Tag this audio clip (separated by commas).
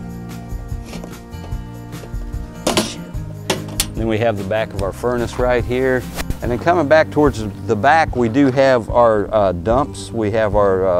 Speech, Music